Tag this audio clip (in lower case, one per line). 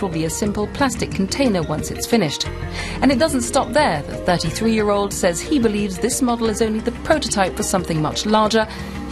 speech
music